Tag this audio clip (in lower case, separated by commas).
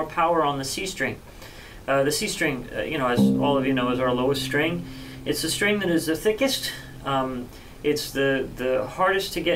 musical instrument, speech, music